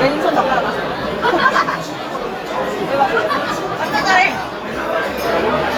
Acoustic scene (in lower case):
restaurant